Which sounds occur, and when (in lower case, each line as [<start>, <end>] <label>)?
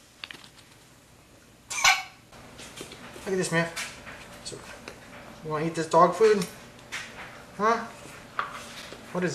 [0.00, 9.34] background noise
[0.20, 0.67] generic impact sounds
[1.66, 1.97] generic impact sounds
[2.28, 2.37] generic impact sounds
[2.53, 2.95] generic impact sounds
[3.06, 3.90] man speaking
[3.21, 3.90] generic impact sounds
[4.21, 5.00] generic impact sounds
[5.41, 6.44] man speaking
[5.69, 6.53] generic impact sounds
[6.82, 7.32] generic impact sounds
[7.47, 7.81] man speaking
[8.29, 8.84] generic impact sounds
[9.09, 9.34] man speaking